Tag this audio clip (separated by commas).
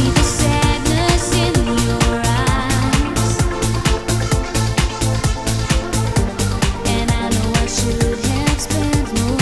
Music